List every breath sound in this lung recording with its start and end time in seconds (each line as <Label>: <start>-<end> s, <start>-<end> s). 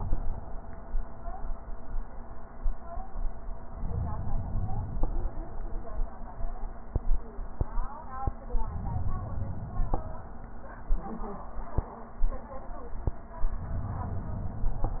Inhalation: 3.64-5.08 s, 8.62-10.13 s